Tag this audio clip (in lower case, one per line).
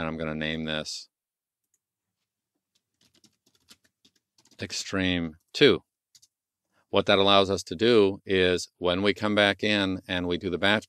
computer keyboard